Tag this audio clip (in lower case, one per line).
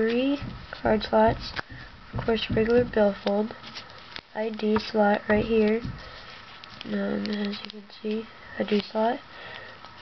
speech